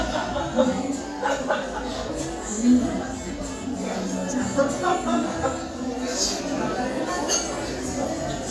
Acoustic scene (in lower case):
restaurant